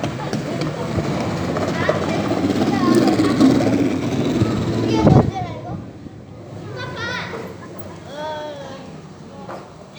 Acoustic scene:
park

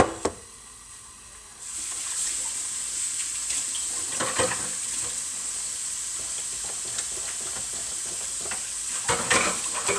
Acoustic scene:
kitchen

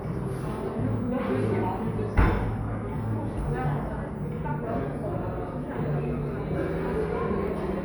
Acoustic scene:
cafe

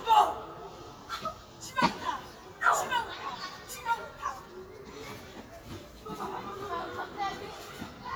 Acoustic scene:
park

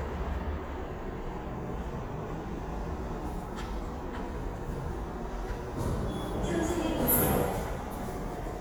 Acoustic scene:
subway station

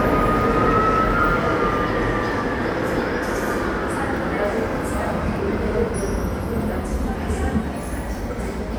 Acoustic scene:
subway station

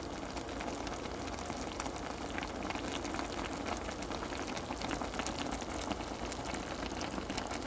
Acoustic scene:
kitchen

